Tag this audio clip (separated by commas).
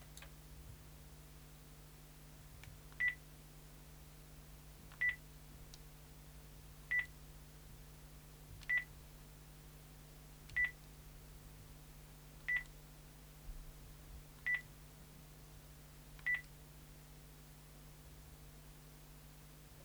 Telephone, Alarm